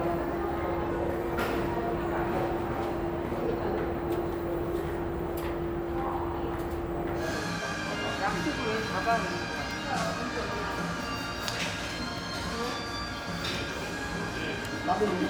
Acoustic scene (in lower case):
crowded indoor space